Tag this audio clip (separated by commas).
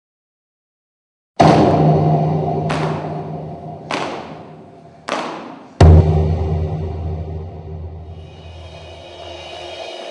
Music